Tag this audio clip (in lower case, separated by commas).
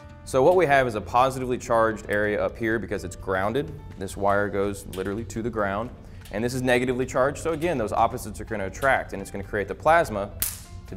music, speech